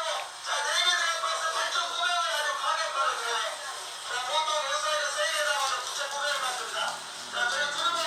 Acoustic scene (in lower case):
crowded indoor space